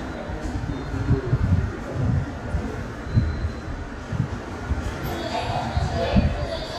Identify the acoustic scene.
subway station